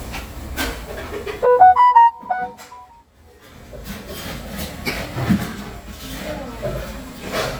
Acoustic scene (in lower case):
cafe